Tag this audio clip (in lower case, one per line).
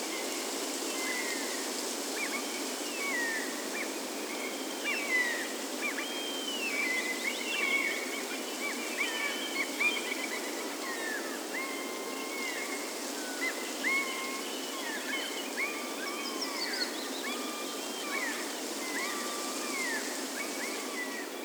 bird
animal
gull
wild animals